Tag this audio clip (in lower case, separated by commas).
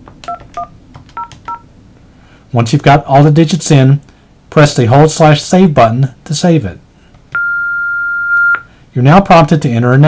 telephone, speech